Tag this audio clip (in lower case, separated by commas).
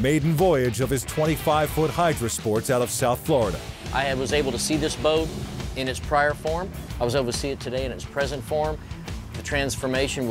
speech, music